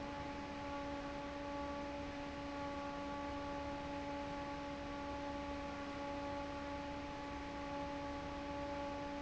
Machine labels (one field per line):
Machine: fan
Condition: normal